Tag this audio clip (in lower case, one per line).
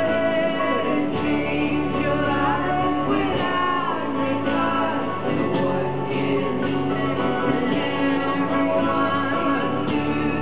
music